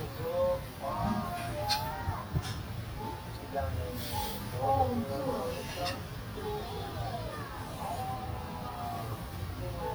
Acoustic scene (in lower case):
restaurant